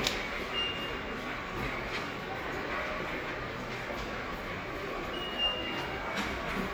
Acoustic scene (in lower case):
subway station